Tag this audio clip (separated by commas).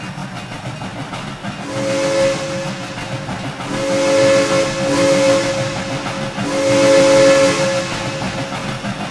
Hiss, Steam whistle, Steam